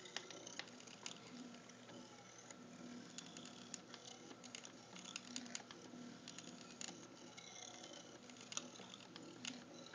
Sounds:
Tick-tock

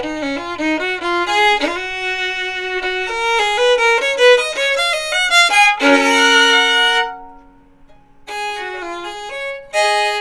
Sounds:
Musical instrument, Music, Violin

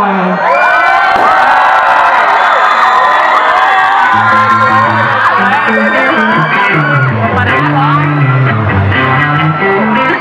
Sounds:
Speech, Music

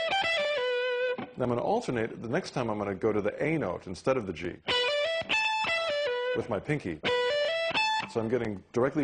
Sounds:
Musical instrument, Speech, Guitar, Music, Plucked string instrument, Strum

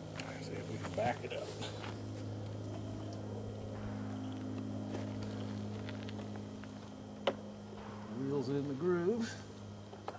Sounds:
Speech

